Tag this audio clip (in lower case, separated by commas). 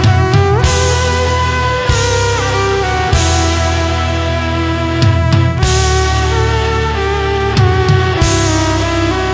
fiddle, music, musical instrument